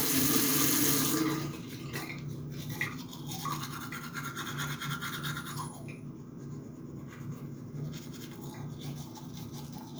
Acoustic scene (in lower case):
restroom